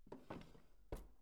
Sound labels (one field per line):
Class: drawer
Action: opening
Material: wooden